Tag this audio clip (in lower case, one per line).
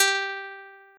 music
musical instrument
guitar
plucked string instrument